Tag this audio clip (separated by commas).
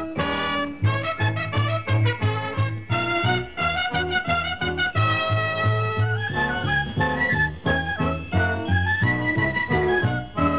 Music